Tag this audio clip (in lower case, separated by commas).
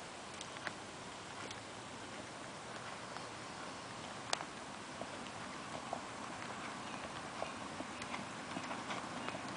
clip-clop, horse clip-clop, animal